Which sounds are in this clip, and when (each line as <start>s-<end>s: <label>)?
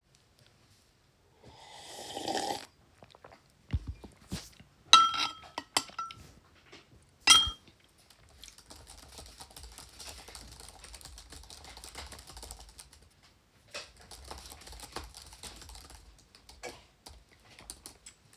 4.9s-6.3s: cutlery and dishes
7.2s-7.7s: cutlery and dishes
8.4s-18.4s: keyboard typing